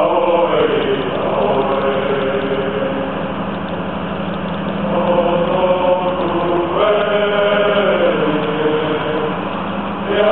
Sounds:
outside, urban or man-made, singing

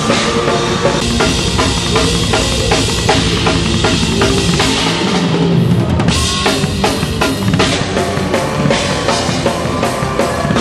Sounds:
music, drum, drum kit, musical instrument

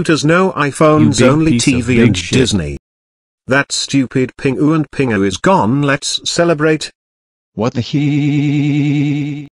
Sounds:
speech

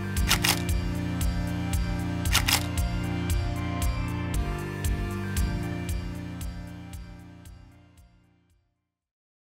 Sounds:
music

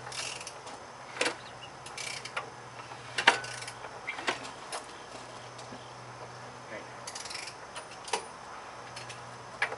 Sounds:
speech

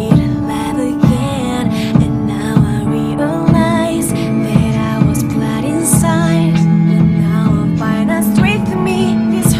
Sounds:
jazz, music

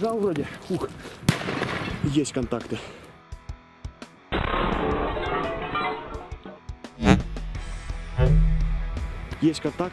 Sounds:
lighting firecrackers

